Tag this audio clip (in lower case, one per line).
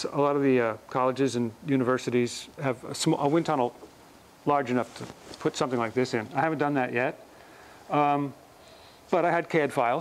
speech